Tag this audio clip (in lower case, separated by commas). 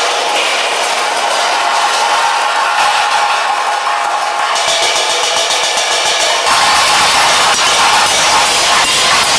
cymbal, hi-hat, percussion